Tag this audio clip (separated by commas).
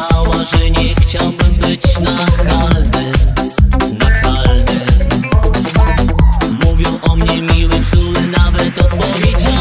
Music, Dance music, Disco